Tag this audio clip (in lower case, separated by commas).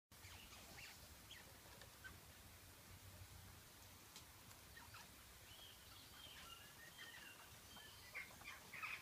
rats